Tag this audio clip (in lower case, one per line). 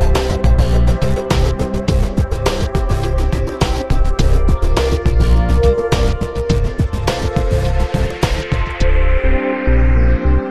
music